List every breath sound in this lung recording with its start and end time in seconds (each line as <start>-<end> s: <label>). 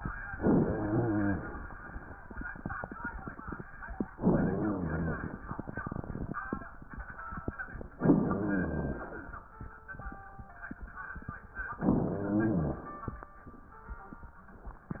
0.34-1.46 s: inhalation
0.34-1.46 s: rhonchi
4.12-5.24 s: inhalation
4.12-5.24 s: rhonchi
8.03-9.15 s: inhalation
8.03-9.15 s: rhonchi
11.78-12.90 s: inhalation
11.78-12.90 s: rhonchi